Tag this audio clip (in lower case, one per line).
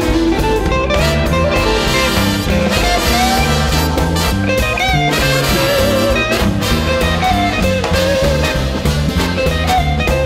keyboard (musical)
organ
piano
electronic organ
hammond organ